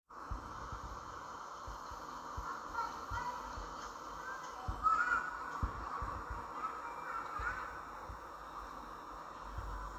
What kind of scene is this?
park